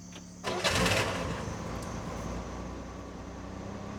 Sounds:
vehicle
motor vehicle (road)
car

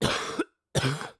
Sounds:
respiratory sounds
cough

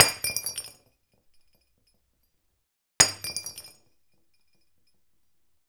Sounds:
shatter
glass

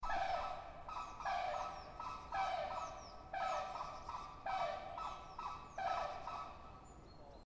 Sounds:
bird
animal
wild animals

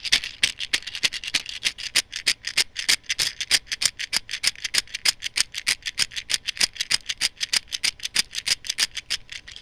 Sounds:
rattle

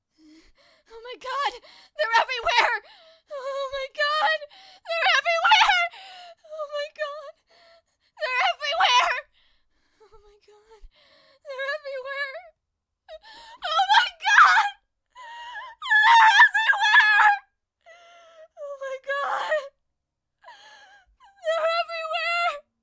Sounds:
human voice

